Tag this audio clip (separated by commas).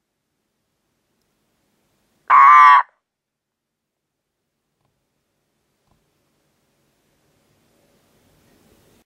Frog